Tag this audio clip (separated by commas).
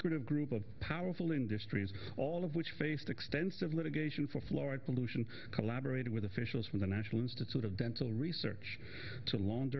Speech